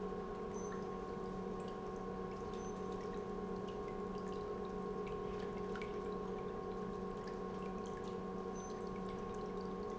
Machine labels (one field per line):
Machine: pump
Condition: normal